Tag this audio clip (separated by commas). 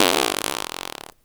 Fart